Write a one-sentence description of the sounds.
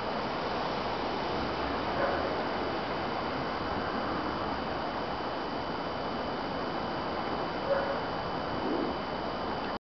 Low outside noises with a distant dog barking